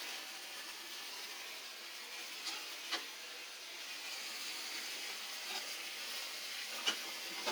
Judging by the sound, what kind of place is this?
kitchen